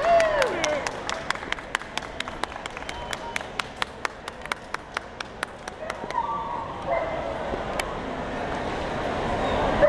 A crowd is clapping and dogs are yipping and barking